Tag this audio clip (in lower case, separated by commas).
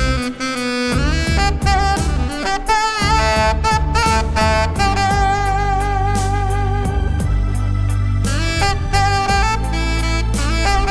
playing saxophone